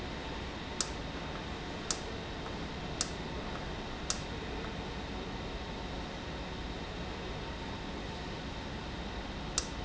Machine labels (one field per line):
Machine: valve